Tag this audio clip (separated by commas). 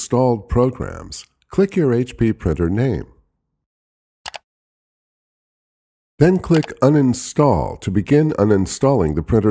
Speech